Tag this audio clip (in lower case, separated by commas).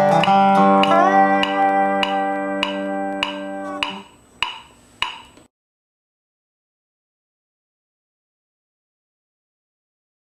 music, guitar, plucked string instrument, musical instrument